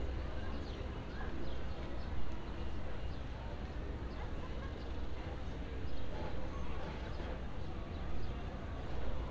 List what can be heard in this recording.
background noise